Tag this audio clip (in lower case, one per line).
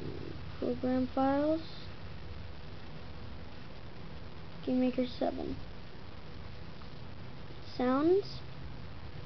speech